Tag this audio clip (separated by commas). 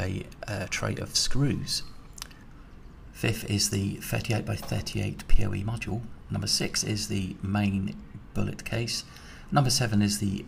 Speech